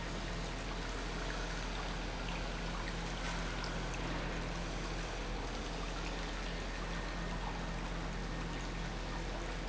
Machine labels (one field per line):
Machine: pump